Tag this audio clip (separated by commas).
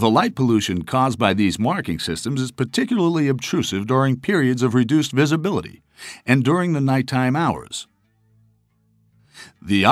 Speech